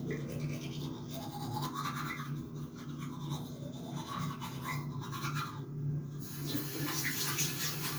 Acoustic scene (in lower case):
restroom